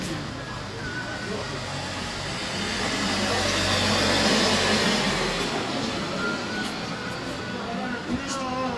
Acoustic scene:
street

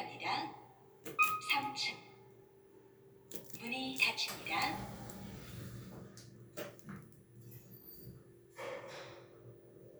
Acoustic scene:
elevator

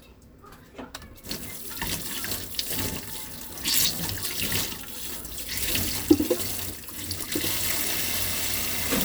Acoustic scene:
kitchen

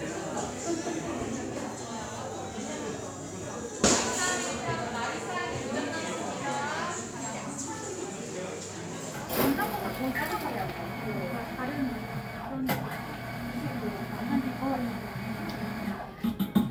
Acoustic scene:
cafe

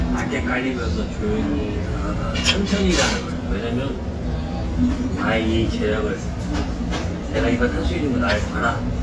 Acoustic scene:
restaurant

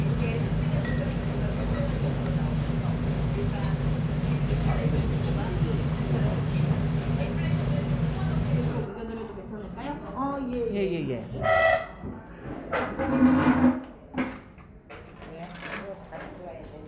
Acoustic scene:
restaurant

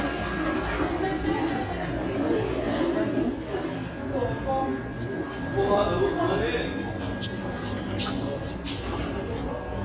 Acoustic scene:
crowded indoor space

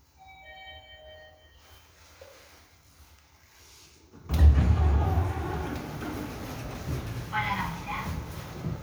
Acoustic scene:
elevator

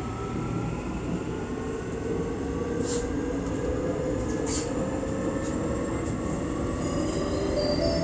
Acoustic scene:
subway train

